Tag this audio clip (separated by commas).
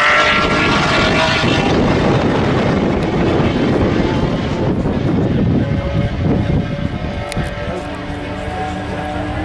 airplane flyby